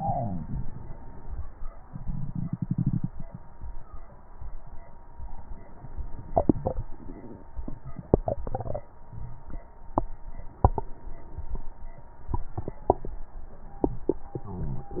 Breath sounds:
0.00-0.56 s: exhalation

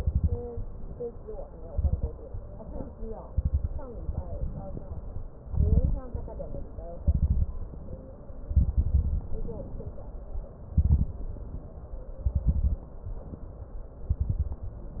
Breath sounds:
0.00-0.53 s: inhalation
0.00-0.53 s: crackles
1.65-2.11 s: inhalation
1.65-2.11 s: crackles
3.27-3.72 s: inhalation
3.27-3.72 s: crackles
3.93-5.26 s: exhalation
3.93-5.26 s: crackles
5.45-6.08 s: inhalation
5.45-6.08 s: crackles
6.12-6.93 s: exhalation
7.03-7.58 s: inhalation
7.03-7.58 s: crackles
7.71-8.42 s: exhalation
8.55-9.25 s: inhalation
8.55-9.25 s: crackles
9.29-9.99 s: exhalation
10.74-11.15 s: inhalation
10.74-11.15 s: crackles
11.19-12.18 s: exhalation
12.28-12.82 s: inhalation
12.28-12.82 s: crackles
12.98-13.96 s: exhalation
14.14-14.69 s: inhalation
14.14-14.69 s: crackles

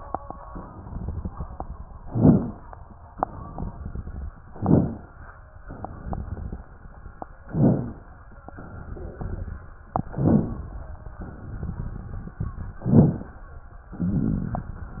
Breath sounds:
1.96-2.66 s: inhalation
1.96-2.66 s: crackles
3.11-4.25 s: exhalation
3.11-4.25 s: crackles
4.50-5.14 s: inhalation
4.50-5.14 s: crackles
5.66-6.72 s: exhalation
5.66-6.72 s: crackles
7.48-8.12 s: inhalation
7.48-8.12 s: crackles
8.43-9.66 s: exhalation
8.43-9.66 s: crackles
10.11-10.76 s: inhalation
10.11-10.76 s: crackles
11.21-12.45 s: exhalation
11.21-12.45 s: crackles
12.81-13.45 s: inhalation
12.81-13.45 s: crackles
13.91-15.00 s: exhalation
13.91-15.00 s: crackles

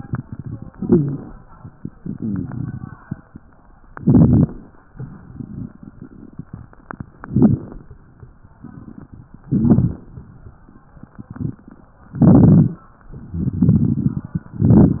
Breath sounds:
0.68-1.35 s: inhalation
0.68-1.35 s: crackles
3.95-4.61 s: inhalation
3.95-4.61 s: crackles
7.15-7.82 s: inhalation
7.15-7.82 s: crackles
9.53-10.19 s: inhalation
9.53-10.19 s: crackles
12.16-12.83 s: inhalation
12.16-12.83 s: crackles
13.25-14.46 s: exhalation
13.25-14.46 s: crackles
14.55-15.00 s: inhalation
14.55-15.00 s: crackles

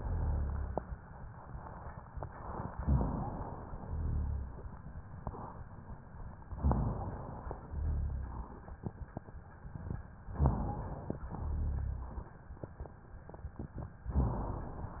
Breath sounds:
0.00-0.82 s: exhalation
0.00-0.82 s: rhonchi
2.79-3.61 s: inhalation
2.79-3.61 s: rhonchi
3.79-4.61 s: exhalation
3.79-4.61 s: rhonchi
6.58-7.40 s: inhalation
6.58-7.40 s: rhonchi
7.68-8.50 s: exhalation
7.68-8.50 s: rhonchi
10.36-11.18 s: inhalation
10.36-11.18 s: rhonchi
11.36-12.18 s: exhalation
11.36-12.18 s: rhonchi
14.13-14.95 s: inhalation
14.13-14.95 s: rhonchi

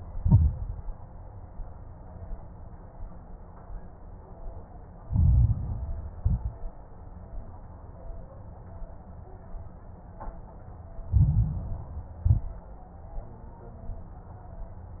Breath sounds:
0.08-0.83 s: exhalation
0.08-0.83 s: crackles
5.05-6.06 s: inhalation
5.05-6.06 s: crackles
6.20-6.82 s: exhalation
6.20-6.82 s: crackles
11.06-12.16 s: inhalation
11.06-12.16 s: crackles
12.26-12.73 s: exhalation
12.26-12.73 s: crackles

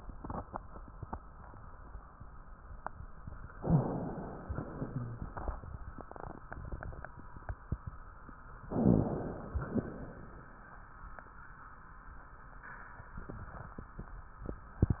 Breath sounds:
3.57-4.54 s: inhalation
4.57-5.37 s: exhalation
4.74-5.26 s: rhonchi
8.71-9.22 s: rhonchi
8.71-9.62 s: inhalation
9.62-10.47 s: exhalation

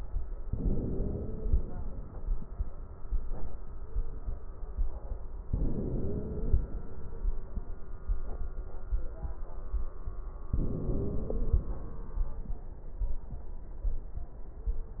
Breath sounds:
0.41-1.91 s: inhalation
0.59-1.45 s: wheeze
5.45-6.68 s: inhalation
5.73-6.59 s: wheeze
10.52-11.66 s: wheeze
10.52-11.91 s: inhalation

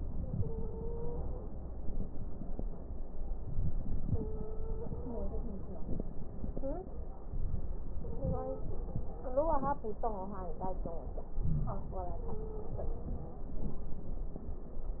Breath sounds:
0.00-1.75 s: inhalation
0.07-1.57 s: stridor
3.39-4.59 s: inhalation
4.05-5.55 s: stridor
4.59-7.18 s: exhalation
7.19-9.15 s: inhalation
7.98-8.70 s: stridor
11.35-11.86 s: wheeze
11.36-13.32 s: inhalation
12.32-13.46 s: stridor

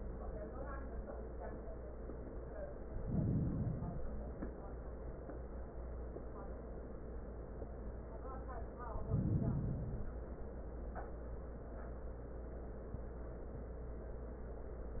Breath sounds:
2.92-4.06 s: inhalation
4.01-4.44 s: wheeze
4.01-5.15 s: exhalation
8.79-10.29 s: inhalation

